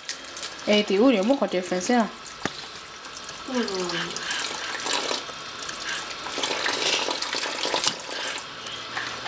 Person chatting and someone running water, washing something